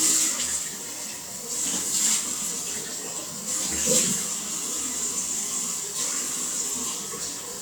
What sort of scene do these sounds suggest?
restroom